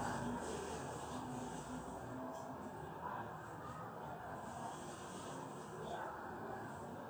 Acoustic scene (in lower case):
residential area